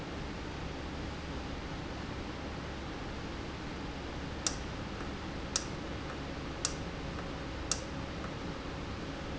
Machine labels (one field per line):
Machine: valve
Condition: normal